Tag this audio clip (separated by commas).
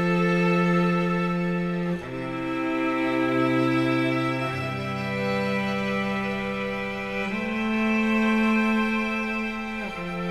Music